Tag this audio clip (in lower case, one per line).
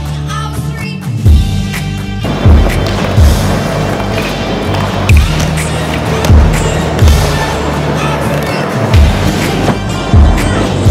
music
skateboard